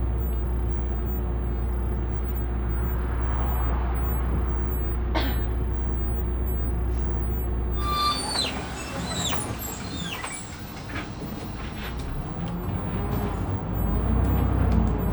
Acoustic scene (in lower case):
bus